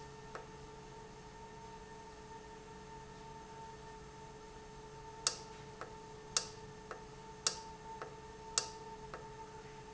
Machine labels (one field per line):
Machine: valve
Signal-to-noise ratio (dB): 6 dB